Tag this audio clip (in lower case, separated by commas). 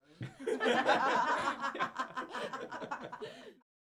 laughter, human voice